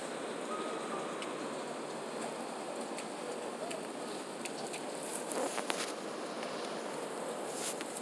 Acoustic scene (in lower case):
residential area